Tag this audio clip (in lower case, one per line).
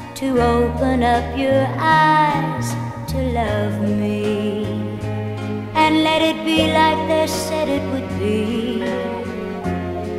music